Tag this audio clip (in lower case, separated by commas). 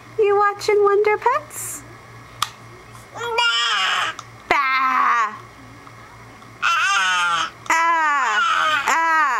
speech